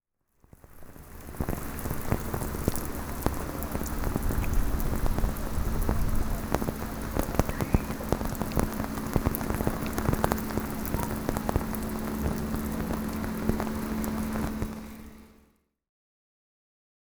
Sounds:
Rain, Water

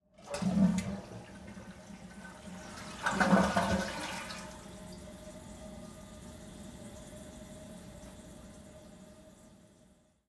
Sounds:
Toilet flush, Domestic sounds

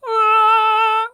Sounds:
Female singing, Human voice, Singing

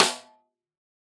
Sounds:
Percussion, Musical instrument, Music, Snare drum, Drum

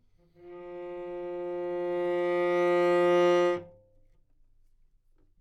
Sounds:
Bowed string instrument, Music, Musical instrument

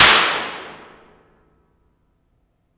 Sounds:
Hands, Clapping

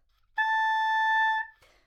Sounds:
Music, Musical instrument, woodwind instrument

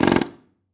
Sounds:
Tools

